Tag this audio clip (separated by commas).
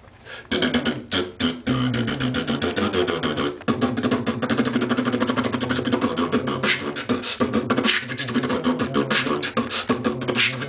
beat boxing